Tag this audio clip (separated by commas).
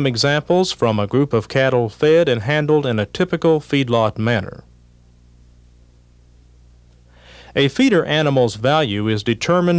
Speech